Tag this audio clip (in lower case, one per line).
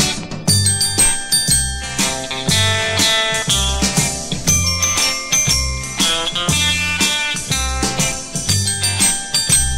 music